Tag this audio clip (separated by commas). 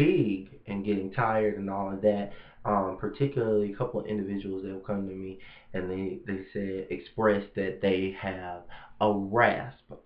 Speech